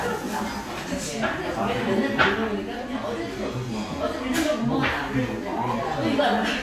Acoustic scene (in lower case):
crowded indoor space